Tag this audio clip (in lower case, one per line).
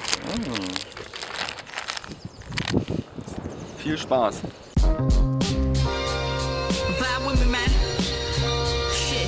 speech
music
outside, rural or natural